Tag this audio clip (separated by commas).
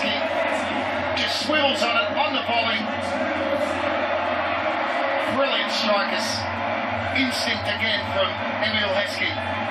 Speech